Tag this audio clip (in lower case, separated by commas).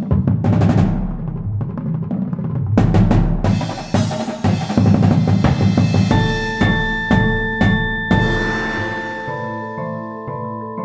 music, drum kit, bass drum, percussion